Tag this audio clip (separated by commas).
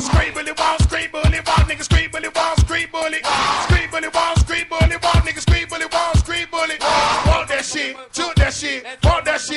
Music